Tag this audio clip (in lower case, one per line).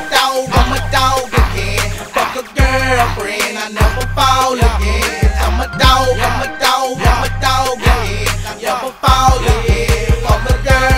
music